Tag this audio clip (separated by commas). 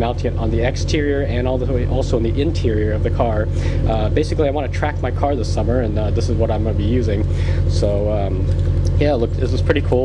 Speech